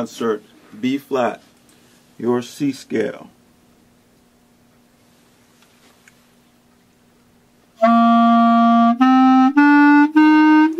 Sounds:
Speech, Musical instrument, Music, woodwind instrument

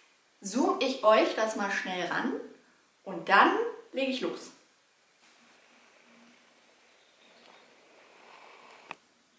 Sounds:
Speech

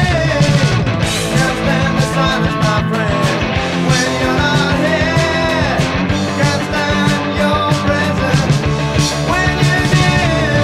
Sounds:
Music

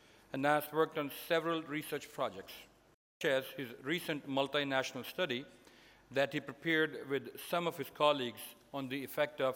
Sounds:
Male speech, monologue, Speech

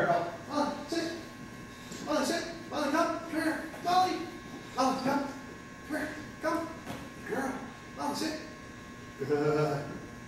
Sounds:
Speech

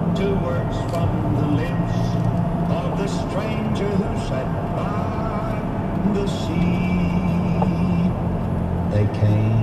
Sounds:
Speech

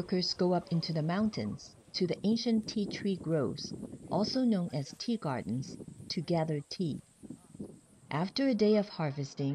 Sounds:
outside, rural or natural, Speech

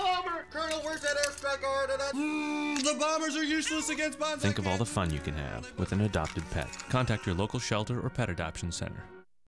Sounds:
Animal, Cat, Music, Speech

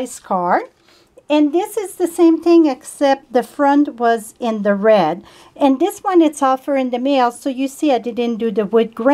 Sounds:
Speech

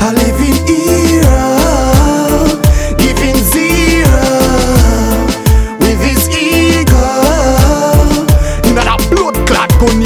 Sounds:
Music

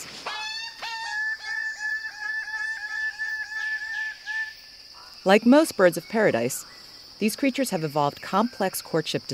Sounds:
Speech

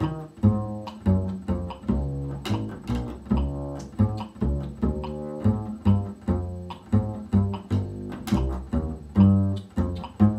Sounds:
Pizzicato, Double bass, Cello, Bowed string instrument

